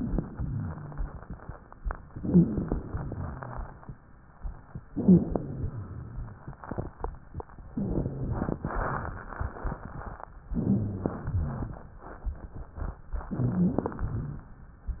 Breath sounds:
0.19-1.14 s: exhalation
0.19-1.14 s: wheeze
2.05-2.83 s: inhalation
2.16-2.54 s: wheeze
2.85-3.80 s: exhalation
2.85-3.80 s: wheeze
4.91-5.29 s: wheeze
4.91-5.66 s: inhalation
5.69-6.43 s: exhalation
5.69-6.43 s: wheeze
7.72-8.58 s: inhalation
7.72-8.58 s: wheeze
10.51-11.29 s: inhalation
10.57-11.21 s: wheeze
11.29-11.88 s: exhalation
11.29-11.88 s: wheeze
13.34-13.98 s: inhalation
13.34-13.98 s: wheeze
14.02-14.59 s: exhalation

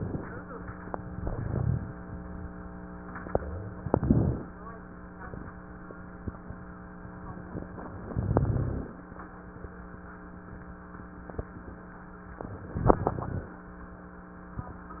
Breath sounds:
1.16-1.94 s: inhalation
1.16-1.94 s: crackles
3.77-4.54 s: inhalation
3.77-4.54 s: crackles
8.09-8.86 s: inhalation
8.09-8.86 s: crackles
12.77-13.55 s: inhalation
12.77-13.55 s: crackles

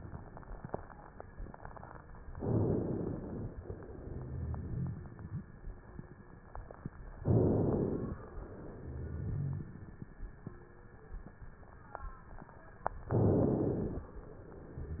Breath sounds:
2.36-3.54 s: inhalation
3.62-5.82 s: exhalation
3.98-5.48 s: rhonchi
7.18-8.18 s: inhalation
8.36-10.08 s: exhalation
8.76-9.68 s: rhonchi
13.08-14.08 s: inhalation

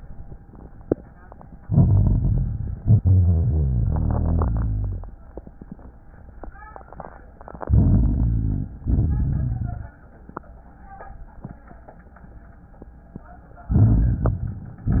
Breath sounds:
1.59-2.75 s: inhalation
1.59-2.75 s: crackles
2.81-5.05 s: exhalation
2.81-5.05 s: rhonchi
7.67-8.71 s: inhalation
7.67-8.71 s: crackles
8.92-9.96 s: exhalation
8.92-9.96 s: rhonchi
13.76-14.93 s: inhalation
13.76-14.93 s: crackles

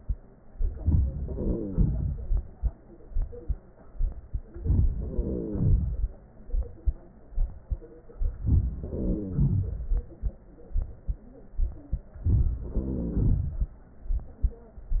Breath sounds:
0.53-1.18 s: inhalation
1.18-2.61 s: exhalation
1.21-1.79 s: wheeze
4.47-4.97 s: inhalation
4.97-6.35 s: exhalation
5.00-5.82 s: wheeze
8.37-8.82 s: inhalation
8.80-10.21 s: exhalation
8.82-9.66 s: wheeze
12.17-12.67 s: inhalation
12.67-13.95 s: exhalation
12.68-13.66 s: wheeze

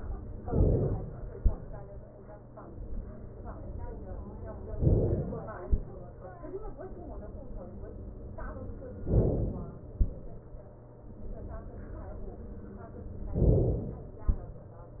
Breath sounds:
0.51-1.36 s: inhalation
4.85-5.70 s: inhalation
9.07-9.93 s: inhalation
13.39-14.24 s: inhalation

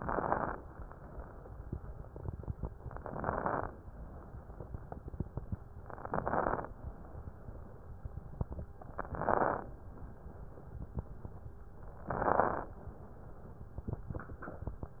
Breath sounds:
0.00-0.59 s: inhalation
0.00-0.59 s: crackles
2.94-3.70 s: inhalation
2.94-3.70 s: crackles
5.88-6.64 s: inhalation
5.88-6.64 s: crackles
8.86-9.62 s: inhalation
8.86-9.62 s: crackles
12.09-12.77 s: inhalation
12.09-12.77 s: crackles

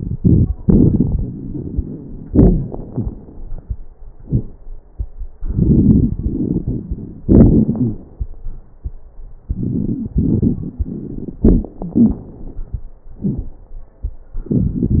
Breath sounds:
0.00-2.21 s: inhalation
0.00-2.21 s: crackles
2.23-3.81 s: exhalation
2.23-3.81 s: crackles
5.41-7.20 s: inhalation
5.41-7.20 s: crackles
7.25-8.15 s: exhalation
7.25-8.15 s: crackles
9.45-11.41 s: inhalation
9.45-11.41 s: crackles
11.43-12.26 s: exhalation
11.80-12.23 s: wheeze
14.42-15.00 s: inhalation

